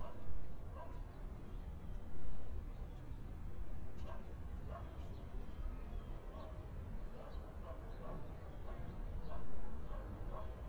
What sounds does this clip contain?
dog barking or whining